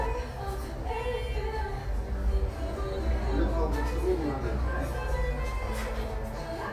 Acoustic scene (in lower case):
cafe